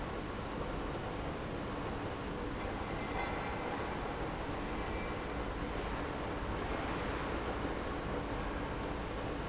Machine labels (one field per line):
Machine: pump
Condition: abnormal